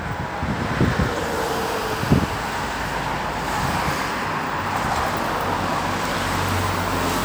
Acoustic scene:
street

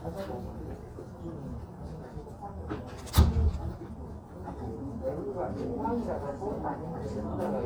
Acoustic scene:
crowded indoor space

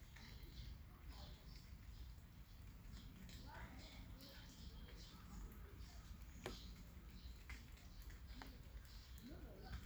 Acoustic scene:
park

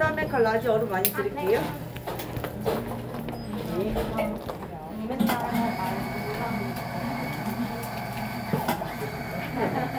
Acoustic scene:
cafe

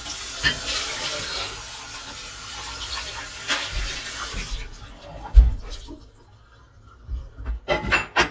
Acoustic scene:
kitchen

